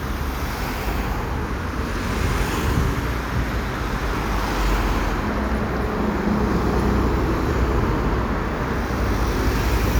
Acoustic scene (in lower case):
street